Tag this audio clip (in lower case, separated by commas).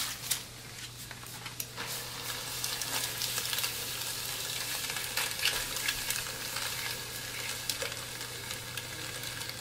frying (food)